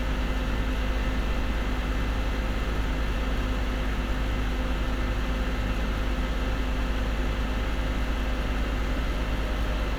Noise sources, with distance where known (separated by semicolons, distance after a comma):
unidentified impact machinery